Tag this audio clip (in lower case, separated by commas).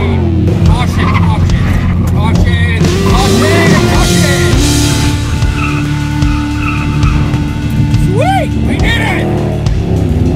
music, vehicle, car, speech